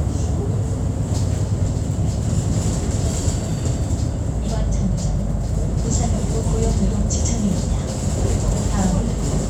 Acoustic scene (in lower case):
bus